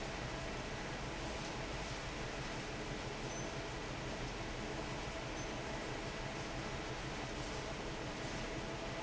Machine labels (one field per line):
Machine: fan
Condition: normal